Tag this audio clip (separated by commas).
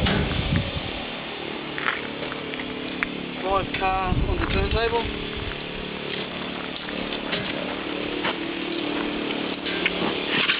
Speech